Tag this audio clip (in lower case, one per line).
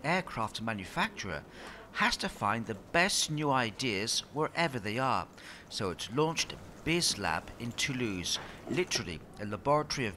speech